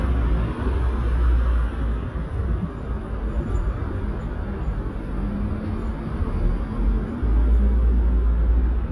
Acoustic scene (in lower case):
street